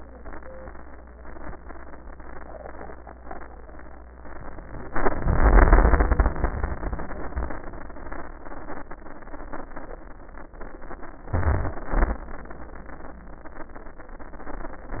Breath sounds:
11.35-11.81 s: inhalation
11.95-12.26 s: exhalation

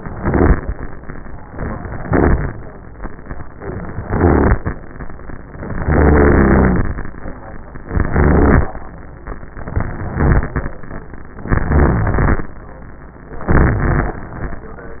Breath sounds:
0.08-0.63 s: inhalation
1.97-2.52 s: inhalation
4.02-4.71 s: inhalation
5.84-7.00 s: inhalation
7.91-8.69 s: inhalation
9.81-10.59 s: inhalation
11.52-12.45 s: inhalation
13.53-14.46 s: inhalation

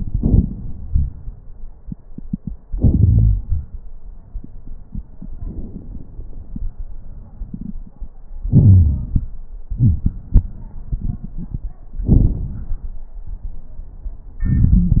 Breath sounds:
0.00-1.11 s: exhalation
0.00-1.12 s: crackles
2.69-3.47 s: inhalation
2.69-3.47 s: wheeze
5.37-6.47 s: exhalation
5.37-6.47 s: crackles
8.46-9.28 s: inhalation
8.46-9.28 s: crackles
9.77-10.10 s: wheeze
12.06-13.02 s: exhalation
12.06-13.02 s: crackles
14.46-15.00 s: inhalation
14.46-15.00 s: crackles

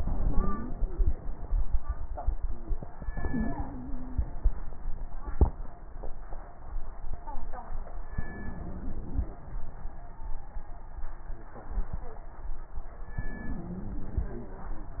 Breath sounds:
0.00-0.76 s: wheeze
0.00-1.08 s: inhalation
3.13-4.24 s: inhalation
3.13-4.24 s: wheeze
8.21-9.31 s: inhalation
8.21-9.31 s: wheeze
13.21-14.31 s: inhalation
13.21-14.31 s: wheeze

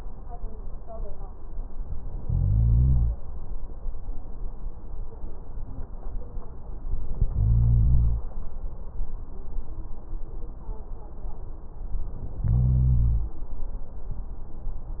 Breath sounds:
2.21-3.14 s: inhalation
7.27-8.21 s: inhalation
12.40-13.33 s: inhalation

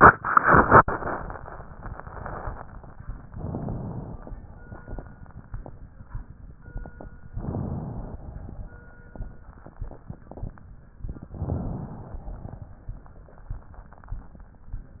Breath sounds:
3.30-4.27 s: inhalation
7.38-8.35 s: inhalation
11.42-12.39 s: inhalation

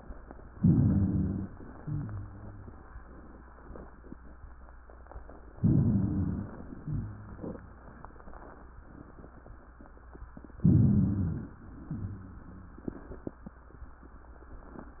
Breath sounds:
0.55-1.51 s: inhalation
0.55-1.51 s: rhonchi
1.73-2.80 s: exhalation
1.73-2.80 s: rhonchi
5.58-6.55 s: inhalation
5.58-6.55 s: rhonchi
6.79-7.86 s: exhalation
6.79-7.86 s: rhonchi
10.60-11.57 s: inhalation
10.60-11.57 s: rhonchi
11.79-12.86 s: exhalation
11.79-12.86 s: rhonchi

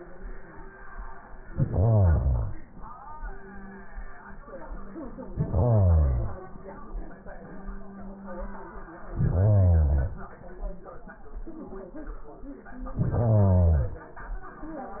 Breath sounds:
1.42-2.76 s: inhalation
5.19-6.47 s: inhalation
9.04-10.37 s: inhalation
12.91-14.11 s: inhalation

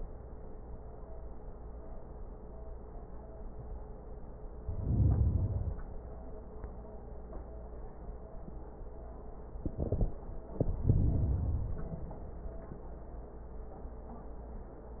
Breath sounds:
4.56-5.95 s: inhalation
10.45-11.73 s: inhalation
11.74-13.06 s: exhalation

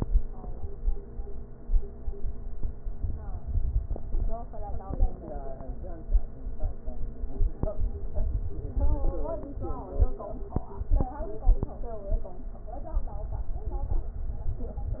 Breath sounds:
No breath sounds were labelled in this clip.

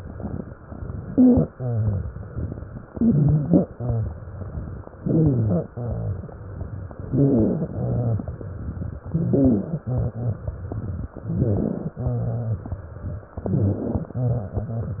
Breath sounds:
0.70-1.48 s: inhalation
1.08-1.48 s: wheeze
1.54-2.83 s: exhalation
1.55-2.09 s: rhonchi
2.92-3.66 s: inhalation
2.92-3.66 s: wheeze
3.72-4.18 s: rhonchi
3.72-4.86 s: exhalation
5.01-5.69 s: inhalation
5.01-5.69 s: wheeze
5.73-6.38 s: rhonchi
5.73-6.87 s: exhalation
7.04-7.71 s: inhalation
7.04-7.71 s: wheeze
7.78-8.45 s: rhonchi
7.78-8.92 s: exhalation
9.05-9.85 s: inhalation
9.05-9.85 s: wheeze
9.87-11.08 s: exhalation
9.87-11.08 s: rhonchi
11.21-11.96 s: inhalation
11.21-11.96 s: wheeze
12.03-12.77 s: rhonchi
12.03-13.26 s: exhalation
13.39-14.14 s: inhalation
13.39-14.14 s: wheeze

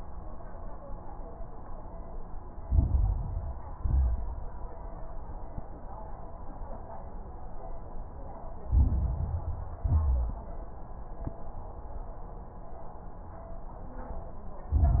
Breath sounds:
2.64-3.74 s: inhalation
2.64-3.74 s: crackles
3.76-4.45 s: exhalation
3.76-4.45 s: crackles
8.68-9.78 s: inhalation
8.68-9.78 s: crackles
9.82-10.52 s: exhalation
9.82-10.52 s: crackles
14.73-15.00 s: inhalation
14.73-15.00 s: crackles

